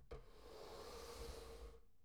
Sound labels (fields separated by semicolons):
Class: furniture moving; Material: wooden